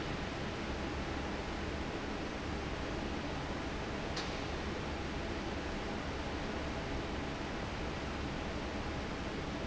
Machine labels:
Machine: fan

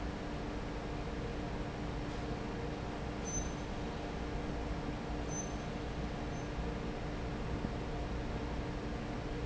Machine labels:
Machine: fan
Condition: normal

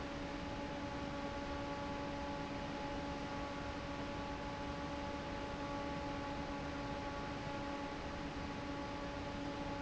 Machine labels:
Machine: fan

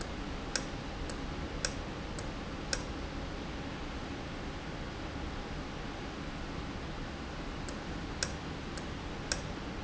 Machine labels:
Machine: valve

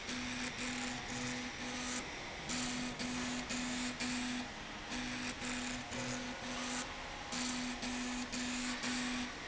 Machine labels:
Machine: slide rail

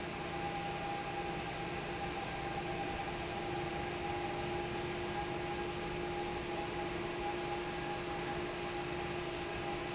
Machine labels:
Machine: fan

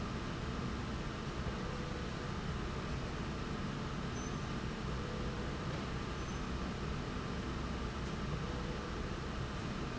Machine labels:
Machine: slide rail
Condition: normal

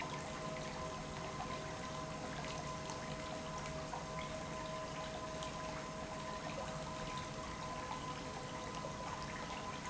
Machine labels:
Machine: pump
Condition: normal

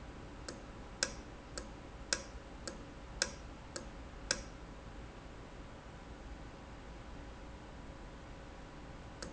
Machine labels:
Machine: valve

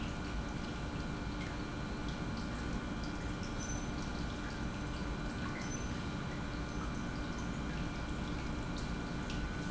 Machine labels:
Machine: pump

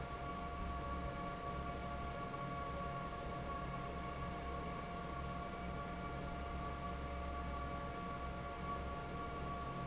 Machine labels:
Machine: fan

